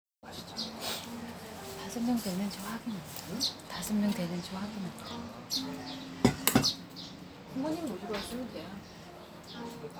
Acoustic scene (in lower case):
restaurant